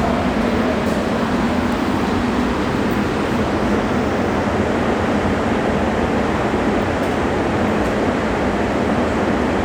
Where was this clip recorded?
in a subway station